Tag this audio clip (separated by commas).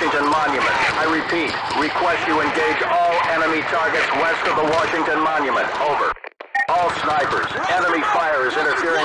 police radio chatter